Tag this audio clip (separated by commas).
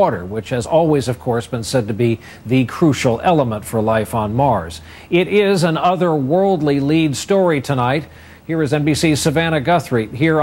Speech